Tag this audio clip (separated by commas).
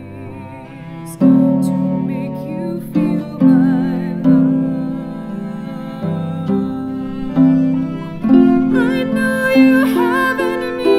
Cello, Musical instrument, Plucked string instrument, Music, Bowed string instrument